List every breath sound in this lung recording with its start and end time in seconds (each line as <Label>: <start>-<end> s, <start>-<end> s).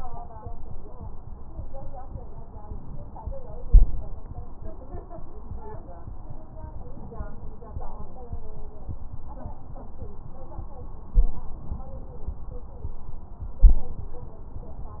Inhalation: 3.60-4.18 s, 11.11-11.57 s, 13.64-14.10 s